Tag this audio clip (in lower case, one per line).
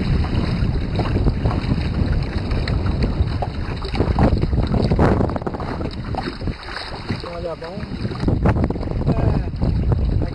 speech
vehicle
boat